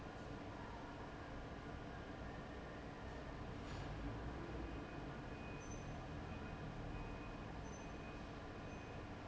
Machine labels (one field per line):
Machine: fan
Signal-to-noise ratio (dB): 6 dB